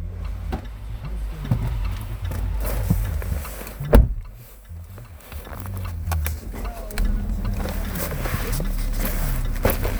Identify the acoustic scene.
car